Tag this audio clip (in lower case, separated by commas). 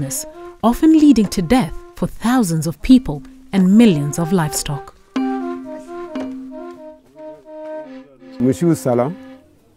music, speech